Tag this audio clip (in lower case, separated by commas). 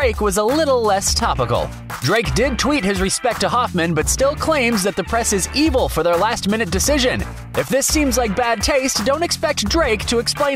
music, speech